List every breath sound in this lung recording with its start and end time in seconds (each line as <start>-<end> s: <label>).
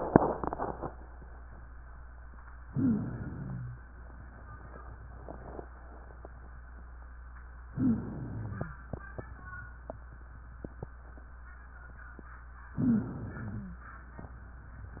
2.63-3.80 s: inhalation
2.63-3.80 s: wheeze
7.75-8.73 s: inhalation
7.75-8.73 s: wheeze
12.75-13.77 s: wheeze
12.79-13.77 s: inhalation